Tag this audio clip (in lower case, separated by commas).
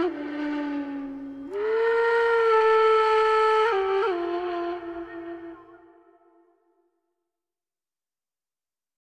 music